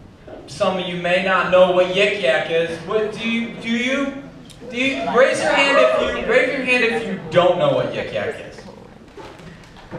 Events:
[0.00, 9.95] mechanisms
[0.20, 0.42] generic impact sounds
[0.42, 4.29] man speaking
[4.44, 4.55] tick
[4.57, 8.64] man speaking
[4.60, 6.33] shout
[8.52, 8.73] human sounds
[8.54, 8.93] generic impact sounds
[9.10, 9.95] generic impact sounds
[9.49, 9.64] breathing

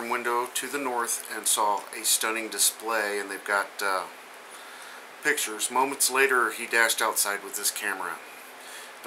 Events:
[0.00, 4.07] male speech
[0.00, 9.05] mechanisms
[0.99, 1.30] generic impact sounds
[1.72, 1.99] generic impact sounds
[4.42, 5.05] breathing
[5.24, 8.19] male speech
[8.48, 9.00] breathing

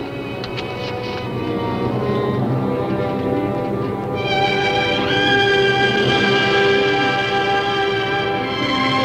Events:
[0.00, 9.04] music
[0.38, 1.22] generic impact sounds
[2.09, 2.18] tick
[2.38, 2.48] tick
[3.14, 3.25] tick
[3.98, 4.08] tick

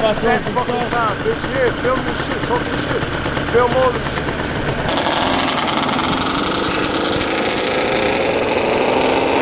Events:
[0.00, 1.09] male speech
[0.00, 9.41] medium engine (mid frequency)
[0.00, 9.41] motorcycle
[1.21, 1.65] male speech
[1.83, 2.29] male speech
[2.49, 2.95] male speech
[3.50, 4.14] male speech
[4.87, 9.41] accelerating

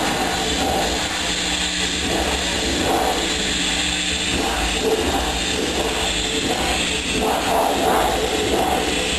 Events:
[0.00, 9.15] air conditioning

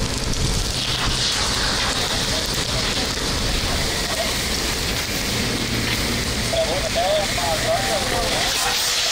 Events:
[0.00, 9.11] gush
[0.00, 9.11] mechanisms
[6.50, 8.53] male speech
[8.60, 8.70] generic impact sounds

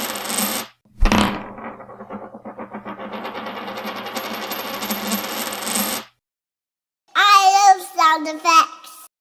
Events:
[0.90, 6.06] coin (dropping)
[7.05, 9.05] child speech

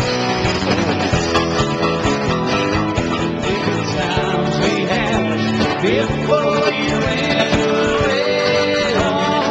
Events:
[0.00, 9.50] music
[3.41, 9.50] choir

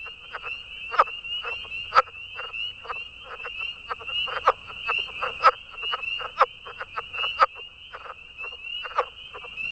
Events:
[0.00, 9.71] wind
[0.01, 9.71] bird
[0.20, 0.47] frog
[0.80, 1.09] frog
[1.34, 1.57] frog
[1.77, 2.07] frog
[2.30, 2.52] frog
[2.77, 2.94] frog
[3.15, 3.44] frog
[3.74, 4.53] frog
[4.82, 5.50] frog
[5.69, 5.97] frog
[6.13, 6.44] frog
[6.63, 7.47] frog
[7.84, 8.20] frog
[8.76, 9.09] frog

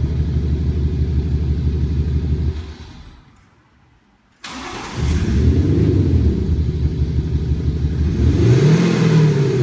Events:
[0.00, 3.16] car
[0.00, 3.16] medium engine (mid frequency)
[0.00, 9.62] background noise
[3.31, 3.38] clicking
[4.26, 4.36] clicking
[4.42, 5.40] engine starting
[4.42, 9.62] medium engine (mid frequency)
[4.92, 6.94] vroom
[4.94, 9.62] car
[8.01, 9.62] vroom

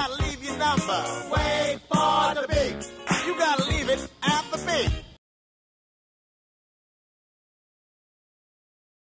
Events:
[0.00, 1.11] male singing
[0.00, 5.14] music
[1.27, 1.75] male singing
[1.88, 2.86] male singing
[3.05, 4.03] male singing
[4.20, 5.14] male singing

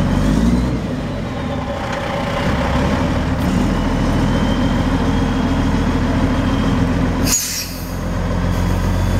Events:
[0.01, 9.15] truck
[7.14, 8.10] air brake

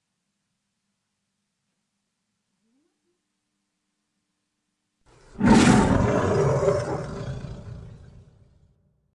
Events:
[0.00, 5.02] background noise
[5.04, 8.65] roar

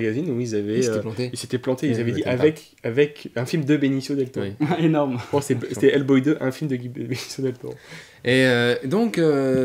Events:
[0.00, 2.63] male speech
[0.00, 9.64] conversation
[0.00, 9.64] mechanisms
[0.20, 0.29] tick
[2.74, 2.82] tick
[2.81, 7.78] male speech
[4.14, 4.30] tick
[7.79, 8.21] breathing
[8.23, 9.64] male speech
[9.57, 9.64] tick

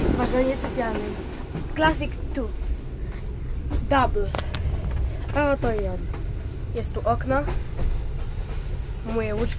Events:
[0.00, 0.95] female speech
[0.00, 9.55] train
[1.76, 2.48] female speech
[3.69, 4.26] female speech
[4.23, 4.58] generic impact sounds
[5.33, 5.93] female speech
[6.69, 7.51] female speech
[9.05, 9.55] female speech

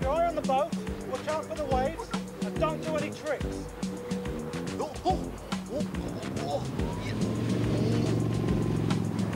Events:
[0.00, 0.66] male speech
[0.00, 5.92] engine
[0.00, 9.35] music
[1.05, 2.17] male speech
[2.39, 3.44] male speech
[4.72, 5.29] human sounds
[5.68, 5.88] human sounds
[5.87, 9.35] water
[6.19, 9.35] motorboat
[6.37, 6.65] human sounds
[6.96, 7.19] human sounds

